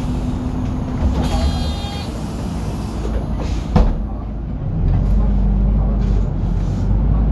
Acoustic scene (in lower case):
bus